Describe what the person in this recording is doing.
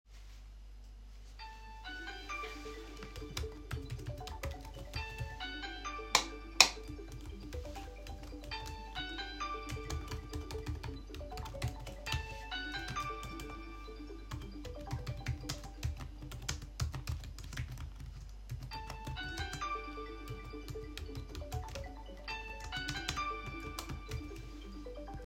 This bonus scene captures high polyphony. I sat at my desk typing while a phone rang, and I reached over to flip a desk lamp switch while the other sounds were active.